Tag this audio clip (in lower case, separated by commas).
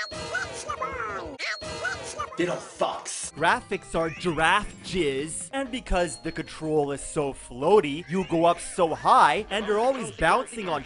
speech